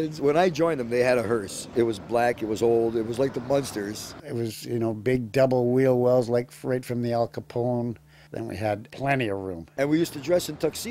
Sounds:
speech

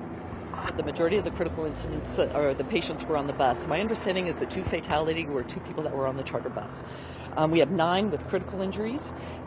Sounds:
speech

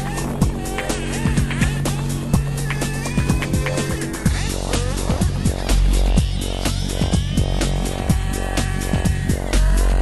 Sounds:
music

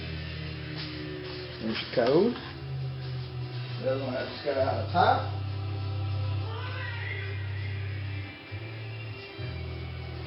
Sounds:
music, speech

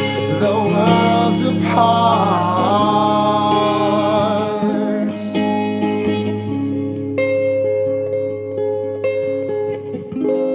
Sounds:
inside a large room or hall, music, singing

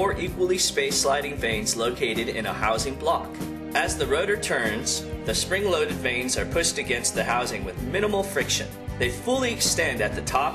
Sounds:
speech, music

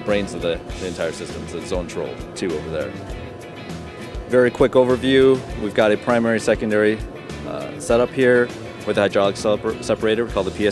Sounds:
speech, music

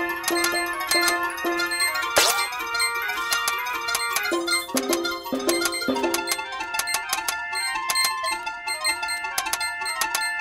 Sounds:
outside, rural or natural, music

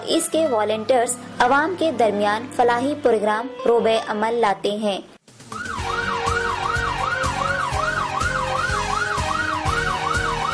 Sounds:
police car (siren)

